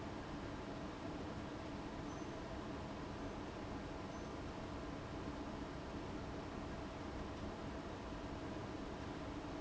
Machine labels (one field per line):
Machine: fan